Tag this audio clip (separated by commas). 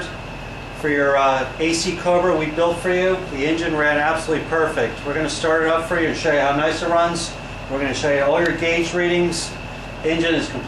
Speech, Engine